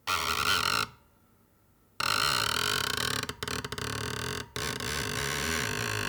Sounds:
Screech

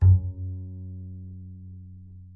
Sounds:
Bowed string instrument, Musical instrument, Music

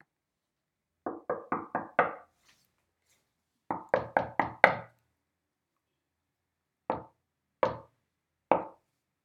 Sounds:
home sounds, Door, Knock

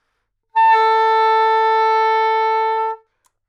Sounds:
Music, Musical instrument, woodwind instrument

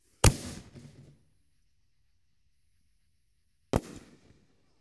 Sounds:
Explosion, Fireworks

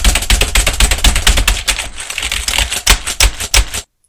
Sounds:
Typing, Computer keyboard, Domestic sounds

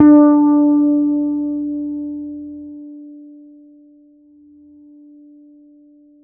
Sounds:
Guitar, Music, Bass guitar, Musical instrument, Plucked string instrument

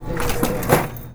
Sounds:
Mechanisms

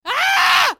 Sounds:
Human voice, Screaming

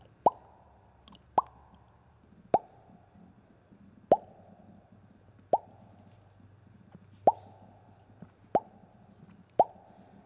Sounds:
Explosion

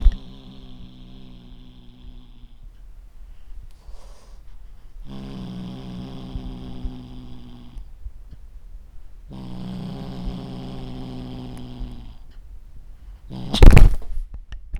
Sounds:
Growling, Domestic animals, Cat, Animal

